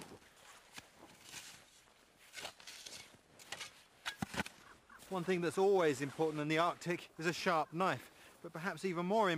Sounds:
speech

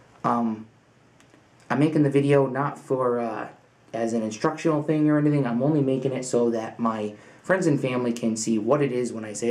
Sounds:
speech

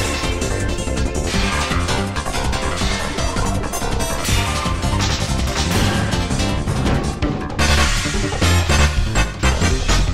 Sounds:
music

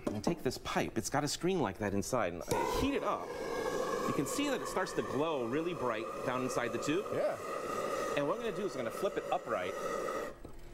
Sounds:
speech

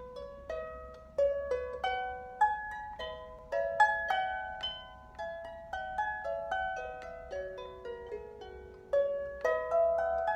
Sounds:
playing harp

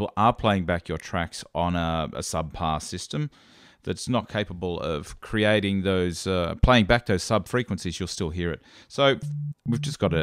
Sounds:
speech

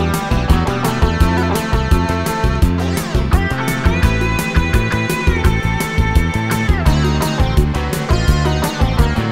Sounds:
music

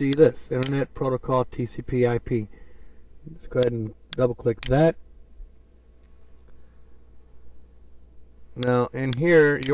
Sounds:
speech

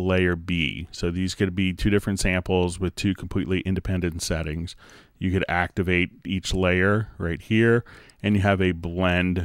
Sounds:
speech

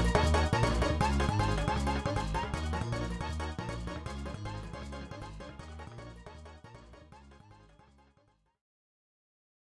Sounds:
video game music, music

